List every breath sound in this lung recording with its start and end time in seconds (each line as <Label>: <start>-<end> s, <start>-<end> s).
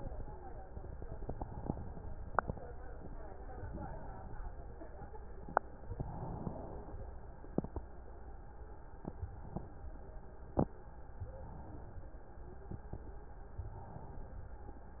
Inhalation: 3.50-4.66 s, 5.83-6.99 s, 9.09-10.25 s, 11.11-12.28 s, 13.60-14.76 s